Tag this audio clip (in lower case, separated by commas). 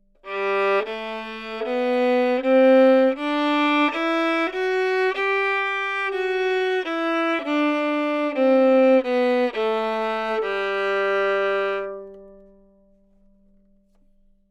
bowed string instrument, musical instrument, music